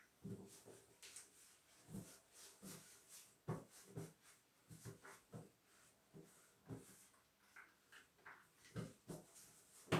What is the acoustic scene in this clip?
restroom